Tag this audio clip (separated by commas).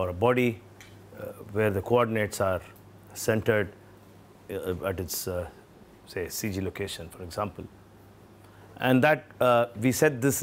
Speech